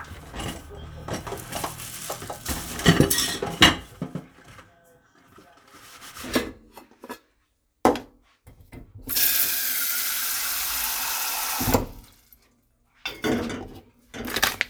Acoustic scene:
kitchen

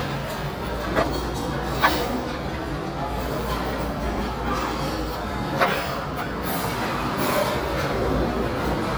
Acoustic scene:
restaurant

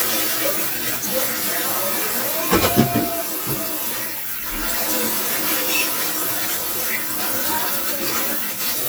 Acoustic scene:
kitchen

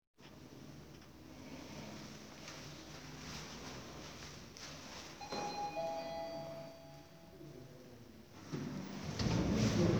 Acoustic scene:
elevator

